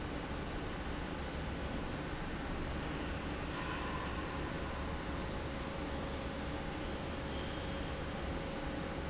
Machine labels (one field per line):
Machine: fan